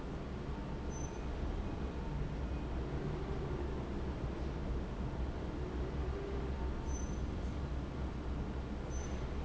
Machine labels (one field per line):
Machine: fan